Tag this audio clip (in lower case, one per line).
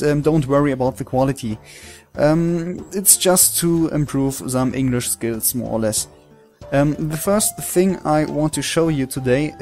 speech
music